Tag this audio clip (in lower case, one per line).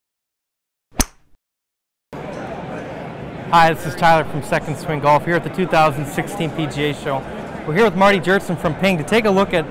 speech